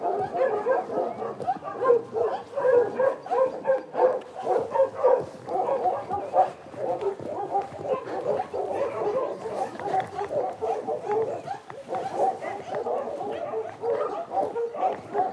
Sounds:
Bark, Animal, Dog, pets

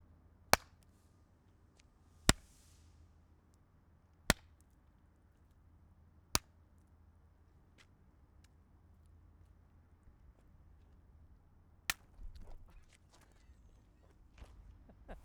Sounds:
Tools, Hammer

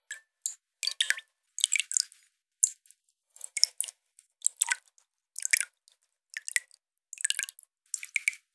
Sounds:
Drip, Rain, Raindrop, Water, Liquid

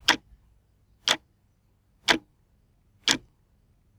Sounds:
Mechanisms, Clock, Tick-tock

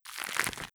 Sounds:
Crackle

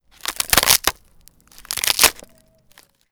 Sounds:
Crushing

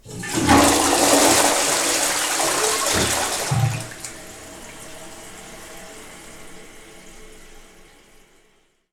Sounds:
Toilet flush, Water, Domestic sounds

